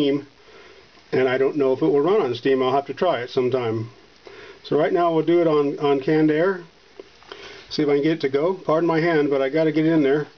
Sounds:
Speech

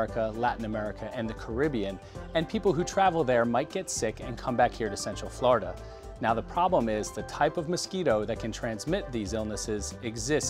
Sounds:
Speech, Music

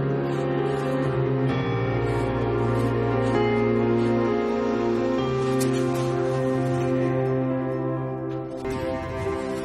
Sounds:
Music

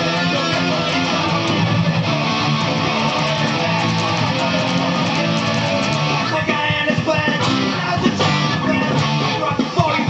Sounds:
Musical instrument, Plucked string instrument, Guitar, Music

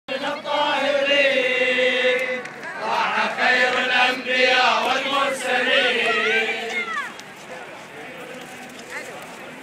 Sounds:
Speech

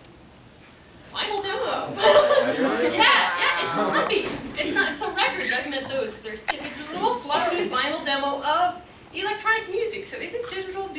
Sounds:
Speech

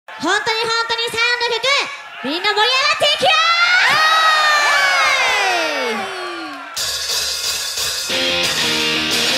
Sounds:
Percussion

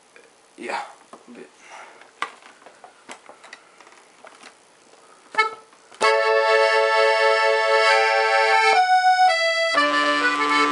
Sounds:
inside a small room, Music, Speech, Musical instrument, Accordion

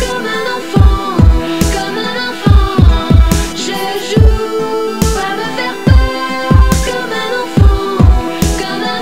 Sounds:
Dubstep, Music, Electronic music

